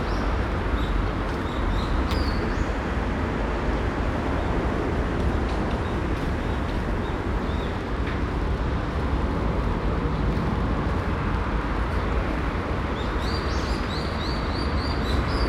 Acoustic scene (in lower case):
park